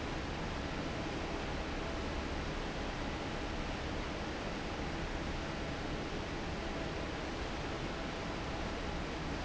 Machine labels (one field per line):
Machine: fan